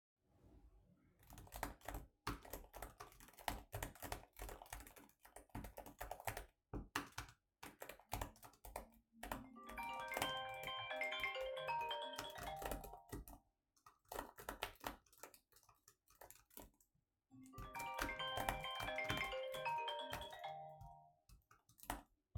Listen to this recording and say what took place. I was typing on my keyboard, when i received a call